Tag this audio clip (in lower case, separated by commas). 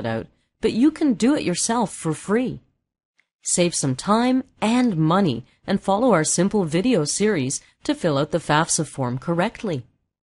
speech